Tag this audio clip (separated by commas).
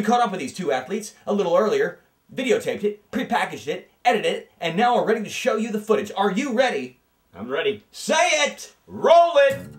Speech, Music